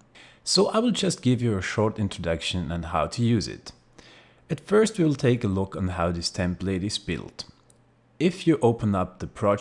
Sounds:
speech

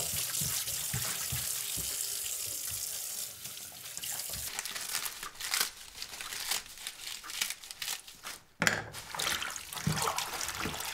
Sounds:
faucet
inside a small room

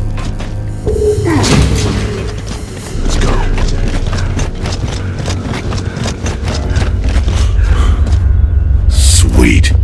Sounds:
speech
music

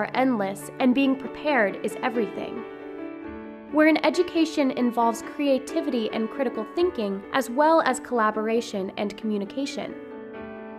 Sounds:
speech
music

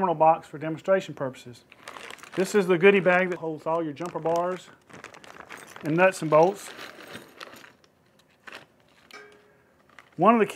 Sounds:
speech

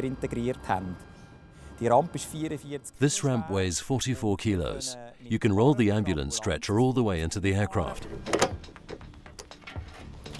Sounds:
speech

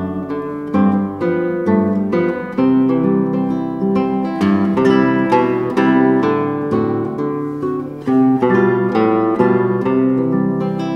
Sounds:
musical instrument
playing acoustic guitar
music
acoustic guitar
strum
plucked string instrument
guitar

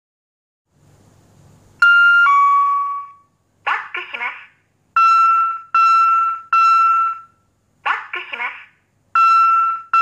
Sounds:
speech

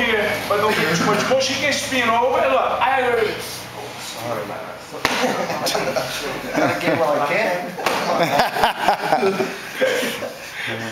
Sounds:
speech

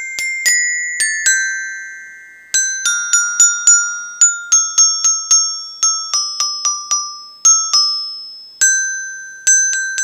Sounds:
playing glockenspiel

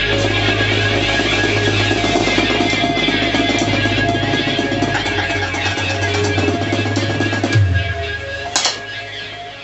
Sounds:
music

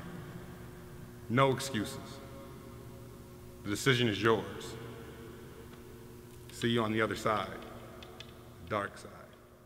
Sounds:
speech

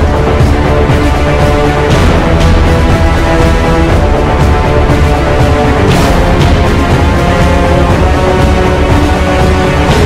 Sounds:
music

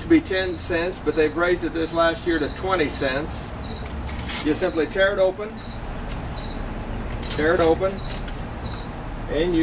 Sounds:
speech

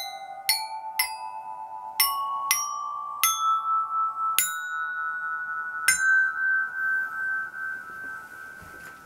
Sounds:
playing glockenspiel

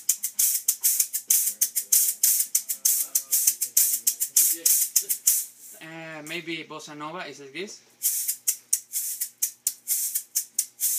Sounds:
maraca

